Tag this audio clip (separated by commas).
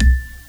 Musical instrument, Mallet percussion, Marimba, Percussion, Music